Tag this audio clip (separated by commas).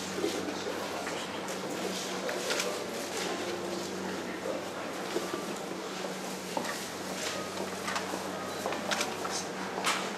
Speech, inside a large room or hall